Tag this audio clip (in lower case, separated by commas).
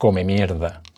man speaking, human voice, speech